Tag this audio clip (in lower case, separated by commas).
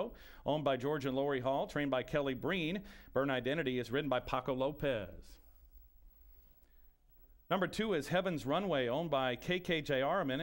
speech